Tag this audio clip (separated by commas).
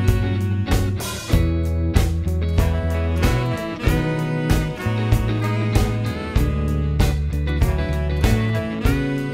Music